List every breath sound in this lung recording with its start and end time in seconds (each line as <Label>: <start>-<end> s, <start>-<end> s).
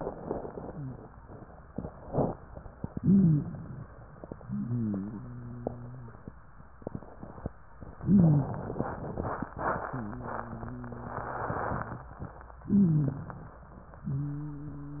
Inhalation: 3.00-3.83 s, 8.06-8.90 s, 12.64-13.59 s
Wheeze: 0.63-1.01 s, 3.00-3.46 s, 4.44-6.26 s, 8.06-8.52 s, 9.90-11.59 s, 12.64-13.28 s, 14.06-15.00 s